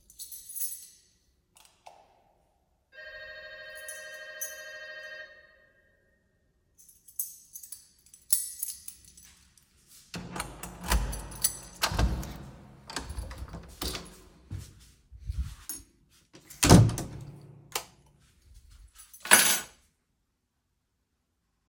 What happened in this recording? I arrive at the apartment door while holding a keychain. The doorbell rings and I unlock and open the door. After entering, I close the door and switch on the light. Finally, I place the keys on a shelf.